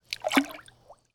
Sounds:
liquid
splatter
water

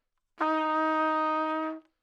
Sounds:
trumpet
music
musical instrument
brass instrument

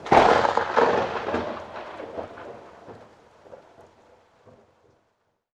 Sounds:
thunderstorm
thunder

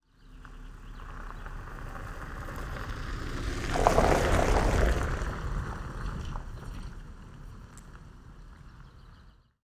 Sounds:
vehicle

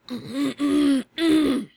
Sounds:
respiratory sounds
human voice
cough

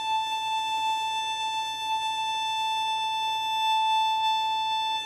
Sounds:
musical instrument
bowed string instrument
music

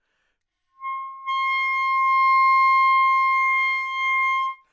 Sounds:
musical instrument
music
woodwind instrument

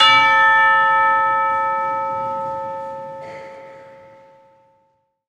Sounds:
musical instrument
music
church bell
percussion
bell

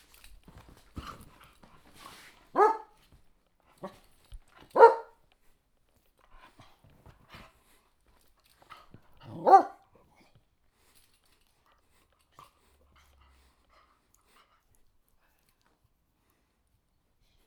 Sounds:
pets
dog
animal
bark

